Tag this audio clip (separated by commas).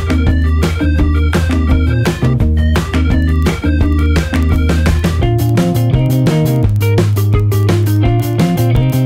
Music